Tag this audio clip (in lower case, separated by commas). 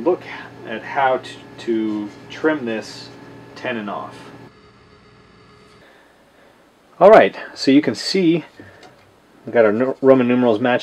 speech